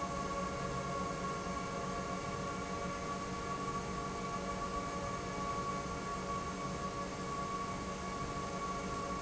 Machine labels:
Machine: pump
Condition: normal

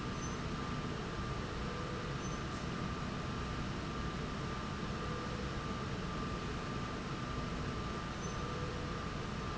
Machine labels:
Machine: slide rail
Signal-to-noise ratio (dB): -6 dB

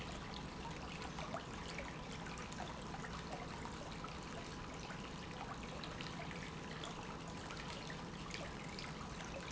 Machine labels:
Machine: pump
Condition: normal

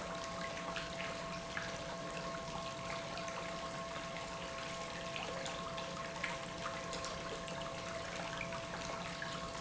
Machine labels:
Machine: pump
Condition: normal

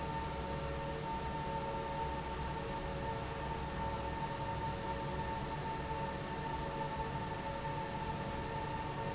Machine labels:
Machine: fan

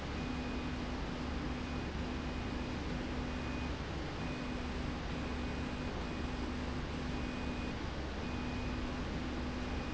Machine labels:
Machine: slide rail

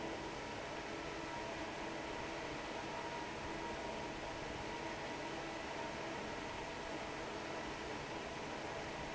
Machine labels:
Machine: fan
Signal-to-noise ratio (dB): 6 dB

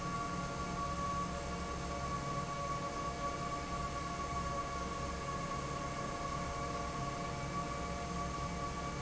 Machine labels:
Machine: fan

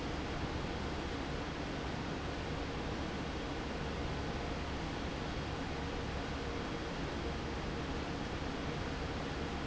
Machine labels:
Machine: fan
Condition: normal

